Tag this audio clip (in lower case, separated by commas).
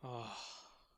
human voice, sigh